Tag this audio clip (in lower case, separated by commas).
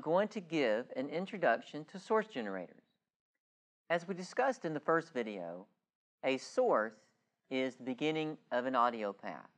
speech